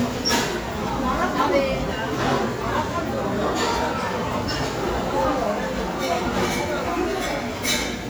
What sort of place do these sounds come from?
crowded indoor space